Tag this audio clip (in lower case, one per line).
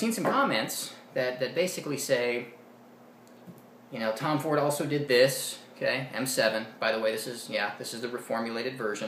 speech